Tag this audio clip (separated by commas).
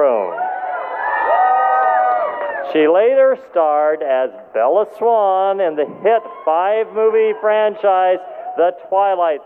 Speech, Male speech, monologue